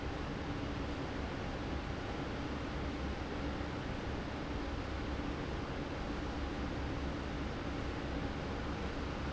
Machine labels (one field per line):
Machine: fan